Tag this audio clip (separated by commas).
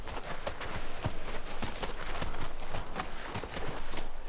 Animal, livestock